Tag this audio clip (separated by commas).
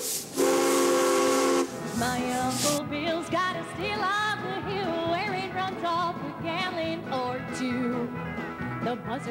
Music